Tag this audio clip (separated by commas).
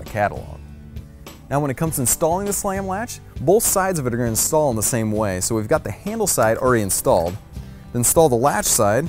Music, Speech